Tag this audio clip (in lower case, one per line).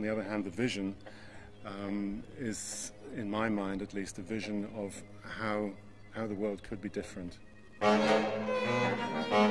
bowed string instrument
music
orchestra
classical music
musical instrument
speech